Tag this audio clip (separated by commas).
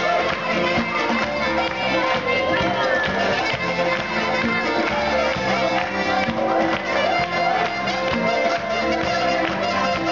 Music